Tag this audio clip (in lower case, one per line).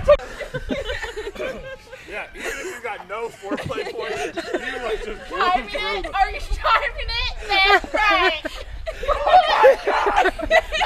speech